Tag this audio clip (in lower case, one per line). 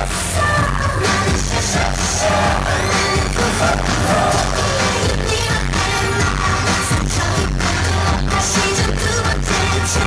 music